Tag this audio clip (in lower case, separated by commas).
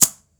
percussion, musical instrument, music, rattle (instrument)